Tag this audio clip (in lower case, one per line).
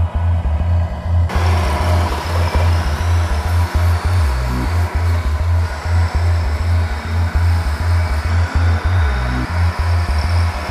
truck
vehicle
music